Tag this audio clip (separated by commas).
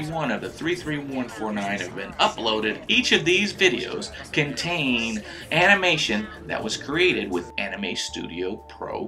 Speech